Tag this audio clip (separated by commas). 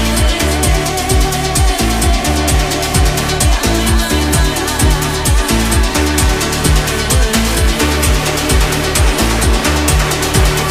Music, Disco